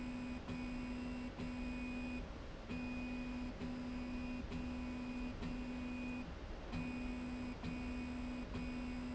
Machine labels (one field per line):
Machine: slide rail